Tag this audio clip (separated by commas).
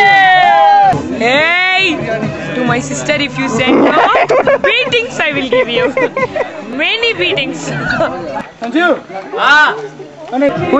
Male speech, woman speaking, Speech, Conversation, Music